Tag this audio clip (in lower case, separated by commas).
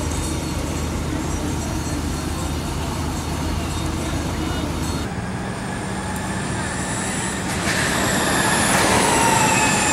speech